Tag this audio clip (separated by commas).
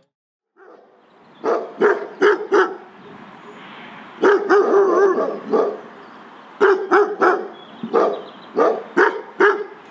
Animal, Bird